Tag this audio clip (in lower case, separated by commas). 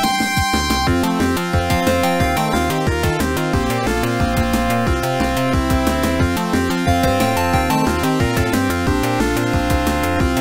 music, funny music